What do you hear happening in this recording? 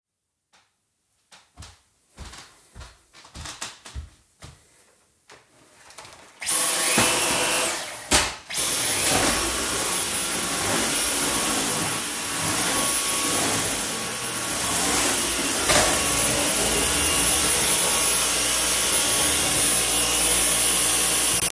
I walked in the living room. After that I used the vacuum cleaner.